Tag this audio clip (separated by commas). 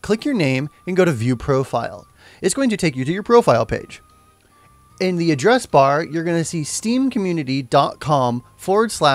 Music, Speech